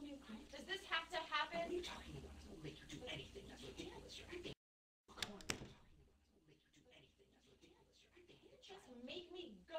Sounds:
Speech

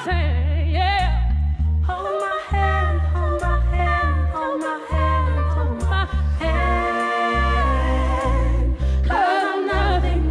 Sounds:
Pop music, Music, Singing

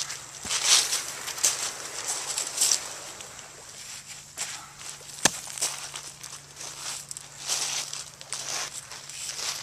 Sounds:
outside, rural or natural

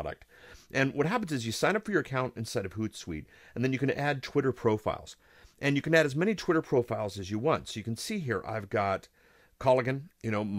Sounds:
Speech

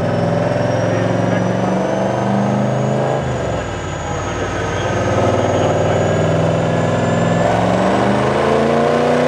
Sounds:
outside, rural or natural, Idling, Vehicle, Speech, Car, auto racing

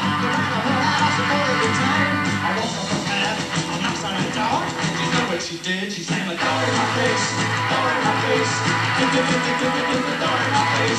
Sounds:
Music, Tap

